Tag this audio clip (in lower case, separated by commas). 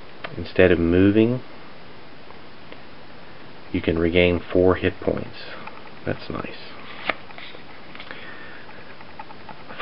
speech